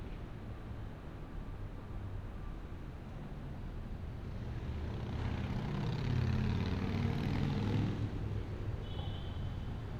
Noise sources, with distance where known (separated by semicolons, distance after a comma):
medium-sounding engine, far; car horn, far